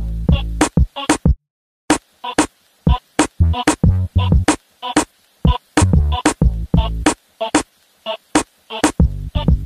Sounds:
music, exciting music

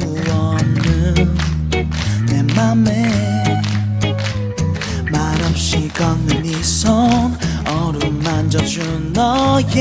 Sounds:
male singing, music

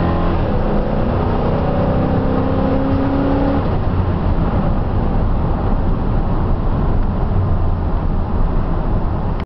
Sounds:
vehicle, car

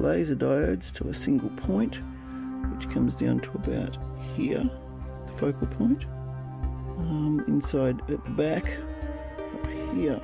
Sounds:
music, speech

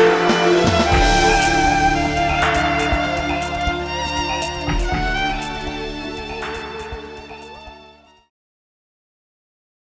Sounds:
bowed string instrument, violin, music

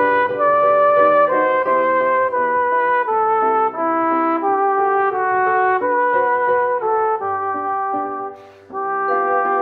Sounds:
brass instrument, trumpet, playing trumpet

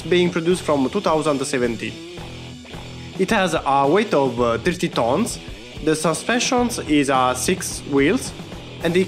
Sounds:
firing cannon

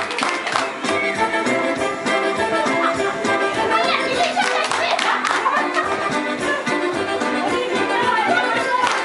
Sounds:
speech, music

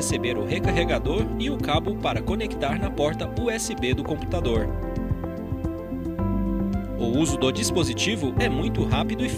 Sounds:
speech, music

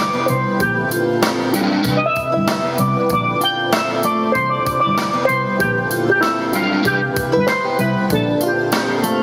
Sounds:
playing steelpan

